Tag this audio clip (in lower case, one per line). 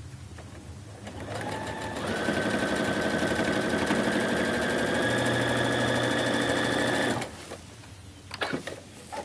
inside a small room
sewing machine